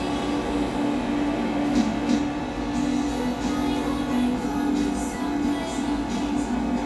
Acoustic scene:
cafe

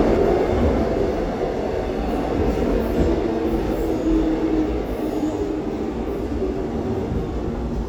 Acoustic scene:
subway train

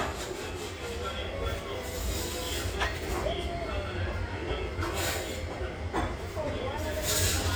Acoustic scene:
restaurant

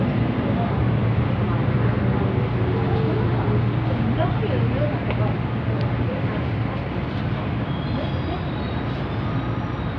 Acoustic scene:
subway train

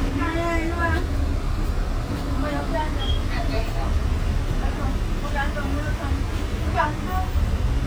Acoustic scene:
bus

